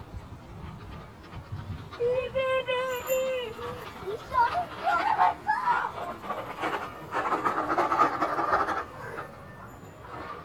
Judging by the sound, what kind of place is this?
residential area